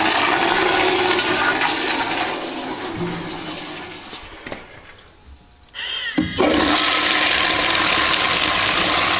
Water, a toilet flushing